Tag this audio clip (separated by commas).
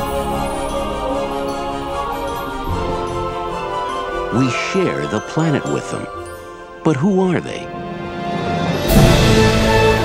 Speech, Music